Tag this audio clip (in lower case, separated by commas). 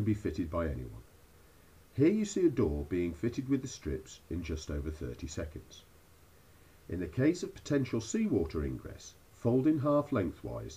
speech